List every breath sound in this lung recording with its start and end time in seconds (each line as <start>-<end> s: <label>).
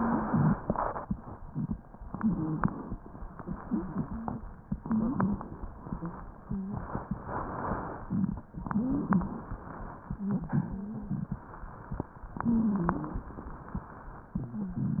2.04-2.94 s: stridor
2.09-2.94 s: inhalation
3.24-4.53 s: exhalation
3.24-4.53 s: wheeze
4.70-5.61 s: stridor
4.72-5.63 s: inhalation
5.71-6.99 s: exhalation
5.71-6.99 s: wheeze
8.53-9.58 s: inhalation
8.57-9.56 s: stridor
10.04-11.46 s: exhalation
10.04-11.46 s: wheeze
12.35-13.34 s: inhalation
12.35-13.34 s: stridor
14.32-15.00 s: exhalation
14.32-15.00 s: wheeze